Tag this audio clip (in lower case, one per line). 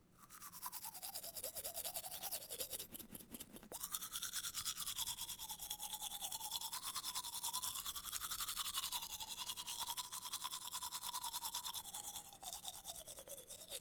domestic sounds